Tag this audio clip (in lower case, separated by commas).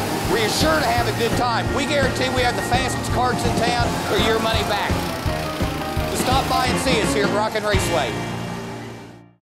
music, speech